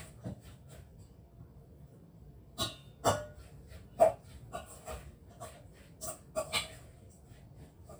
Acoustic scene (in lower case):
kitchen